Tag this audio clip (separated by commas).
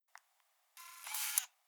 Camera, Mechanisms